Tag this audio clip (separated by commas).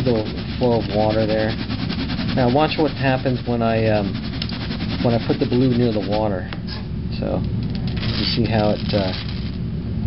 Speech, Gurgling